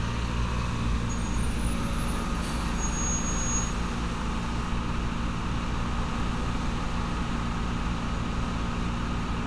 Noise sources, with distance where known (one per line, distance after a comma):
large-sounding engine, near